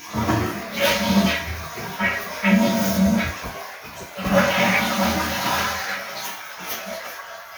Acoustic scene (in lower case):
restroom